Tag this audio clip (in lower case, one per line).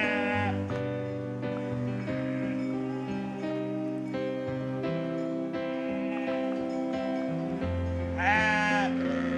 music
sheep
bleat